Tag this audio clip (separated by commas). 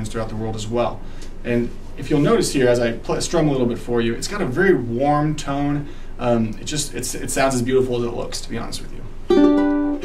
Music, Speech